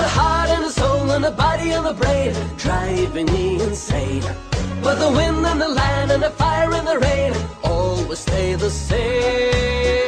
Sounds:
music

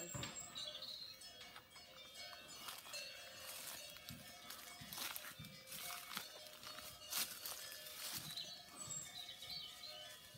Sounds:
bovinae cowbell

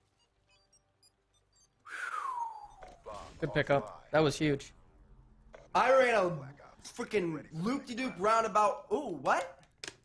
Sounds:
inside a small room, speech

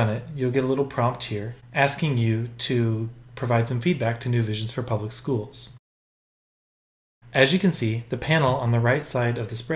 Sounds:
inside a small room, speech

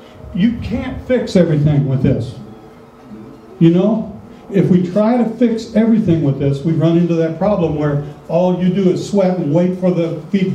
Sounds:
speech

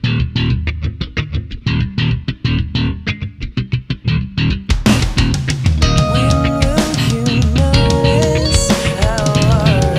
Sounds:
music, bass guitar

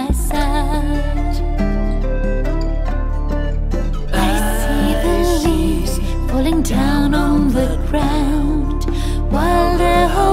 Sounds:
music

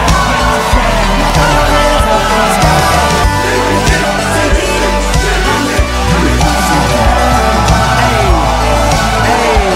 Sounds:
music

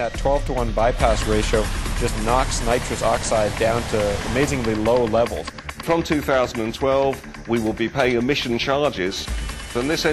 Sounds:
speech, music

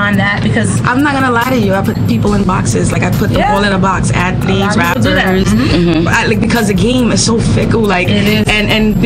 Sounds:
speech, music

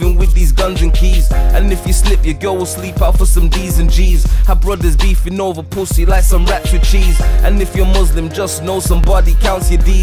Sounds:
music, singing

